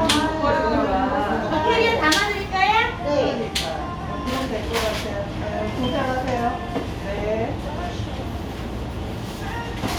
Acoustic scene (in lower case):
cafe